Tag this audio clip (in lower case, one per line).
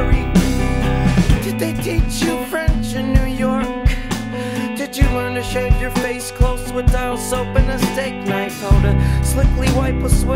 music